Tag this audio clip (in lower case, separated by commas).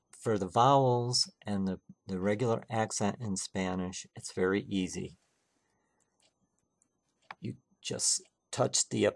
speech